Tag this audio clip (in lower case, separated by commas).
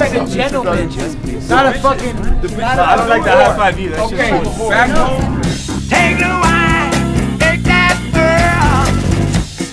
speech, music